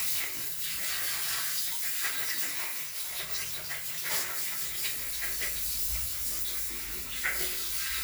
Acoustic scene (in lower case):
restroom